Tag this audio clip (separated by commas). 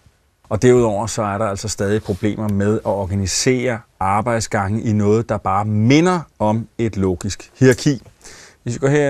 Speech